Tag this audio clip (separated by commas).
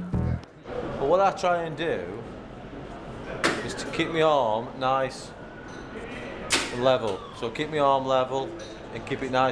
playing darts